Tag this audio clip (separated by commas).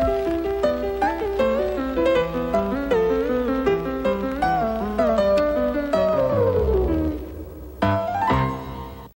Music